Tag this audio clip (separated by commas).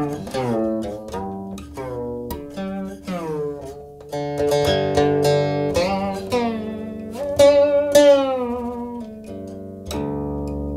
Music